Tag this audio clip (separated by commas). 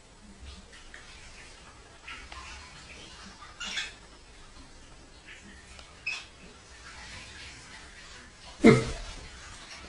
Dog, pets, Animal